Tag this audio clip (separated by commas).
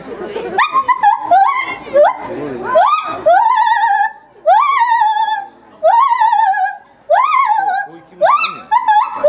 gibbon howling